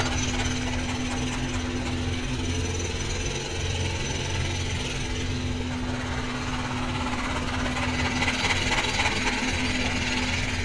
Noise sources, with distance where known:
jackhammer, near

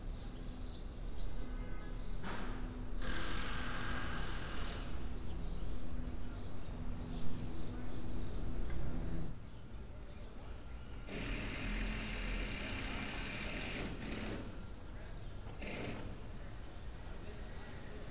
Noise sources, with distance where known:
unidentified impact machinery

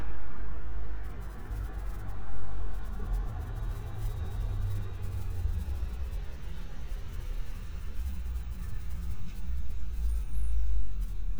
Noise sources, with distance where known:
large-sounding engine

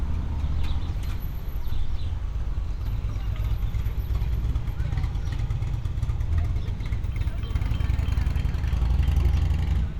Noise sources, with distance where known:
medium-sounding engine
unidentified human voice

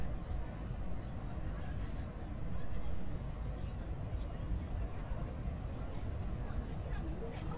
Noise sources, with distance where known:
person or small group talking

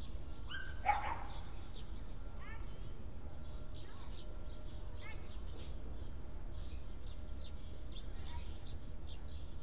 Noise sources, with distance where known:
person or small group talking, far
dog barking or whining, near

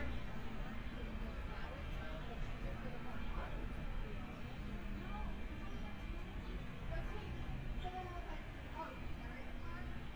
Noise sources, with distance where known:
person or small group talking

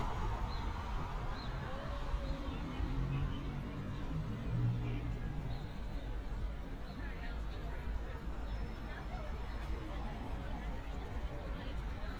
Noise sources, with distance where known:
person or small group talking, far

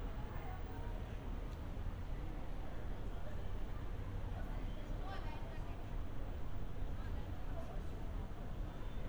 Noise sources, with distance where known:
background noise

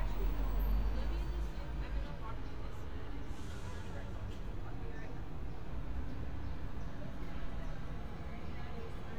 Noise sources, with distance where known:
person or small group talking, near

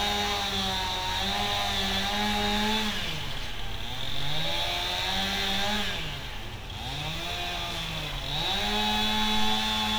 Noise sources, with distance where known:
chainsaw, near

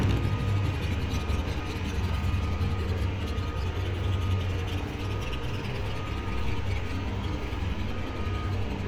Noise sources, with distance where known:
medium-sounding engine, near

